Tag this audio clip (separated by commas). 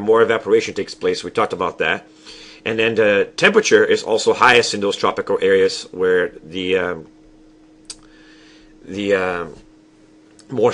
Speech